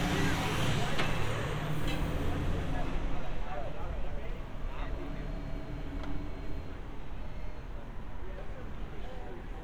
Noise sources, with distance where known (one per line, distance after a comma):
engine of unclear size, near